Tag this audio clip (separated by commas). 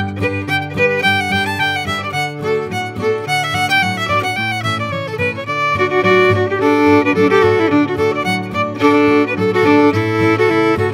Musical instrument, Violin, Music